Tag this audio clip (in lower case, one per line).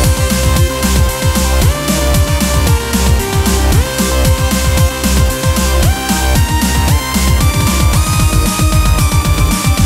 music
sound effect